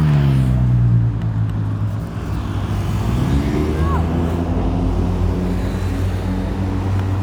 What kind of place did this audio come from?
street